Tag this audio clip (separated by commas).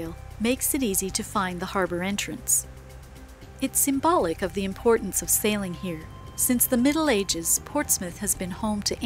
Music, Speech